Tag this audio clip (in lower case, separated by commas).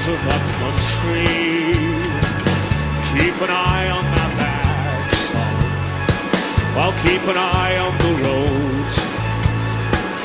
music